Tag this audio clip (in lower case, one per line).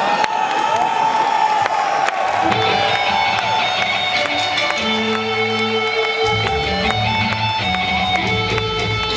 music